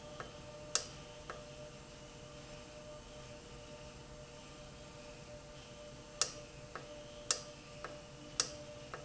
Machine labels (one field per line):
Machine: valve